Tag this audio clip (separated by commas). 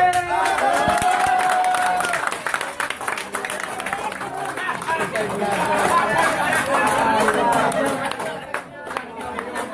striking pool